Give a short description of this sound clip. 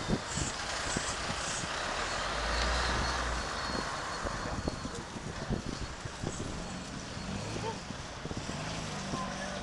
An engine idling